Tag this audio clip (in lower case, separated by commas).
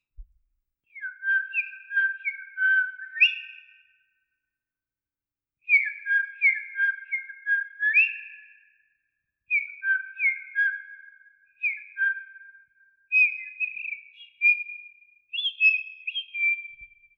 bird, wild animals, tweet, bird call, animal